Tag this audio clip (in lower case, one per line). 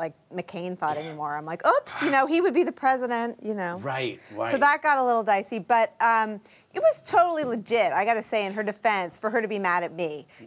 speech